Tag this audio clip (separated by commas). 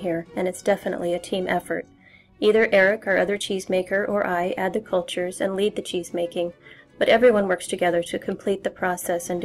Speech, Music